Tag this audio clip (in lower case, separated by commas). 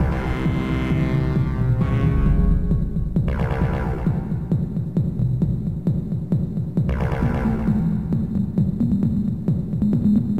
techno, electronic music, music